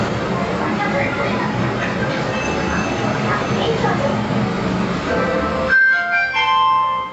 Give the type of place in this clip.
elevator